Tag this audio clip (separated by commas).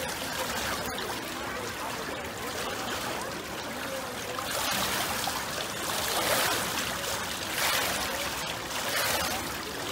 swimming